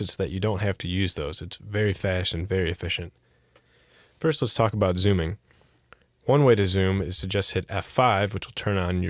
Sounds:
speech

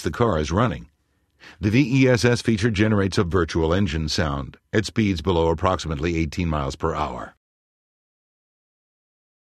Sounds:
speech

